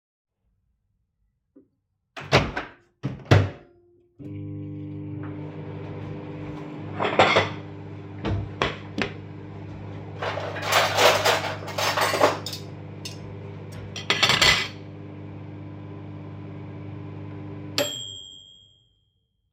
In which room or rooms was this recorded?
kitchen